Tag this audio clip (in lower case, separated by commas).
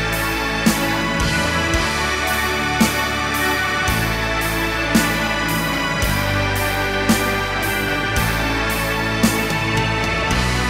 music, folk music